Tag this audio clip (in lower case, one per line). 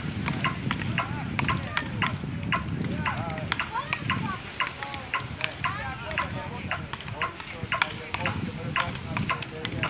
rustle